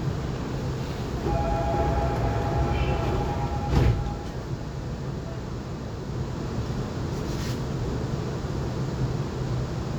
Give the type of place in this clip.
subway train